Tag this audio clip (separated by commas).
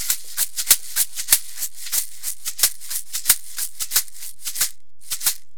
Musical instrument, Music, Percussion, Rattle (instrument)